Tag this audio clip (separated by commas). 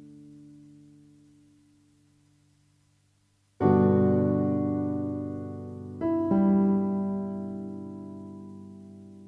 Music